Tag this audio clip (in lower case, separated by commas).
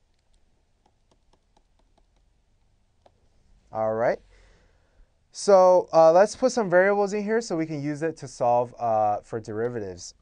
speech, inside a small room